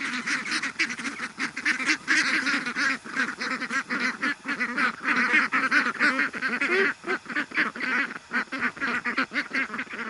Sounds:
duck quacking

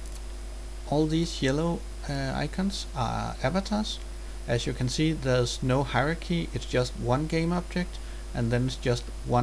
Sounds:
Speech

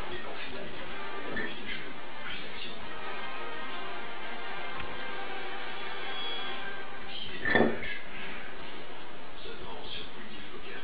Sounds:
Music

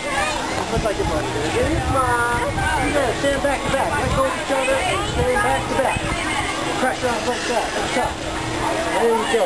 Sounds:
Speech

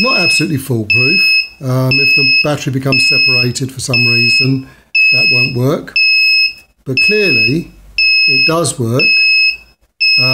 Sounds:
Speech

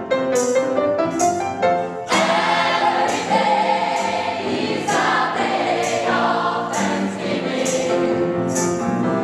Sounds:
Choir, Music

